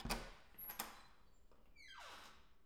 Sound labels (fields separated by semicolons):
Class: door; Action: opening